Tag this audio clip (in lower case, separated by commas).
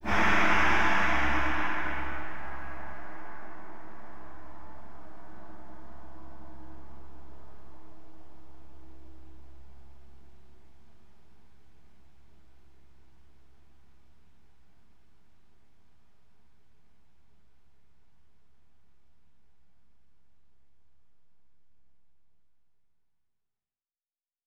musical instrument, music, percussion, gong